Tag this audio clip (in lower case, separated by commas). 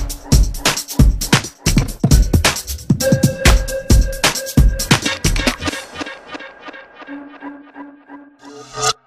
music, electronica